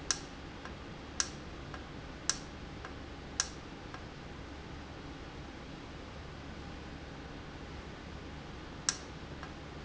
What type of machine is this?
valve